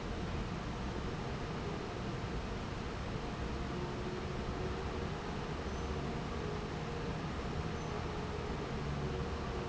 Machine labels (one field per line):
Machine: fan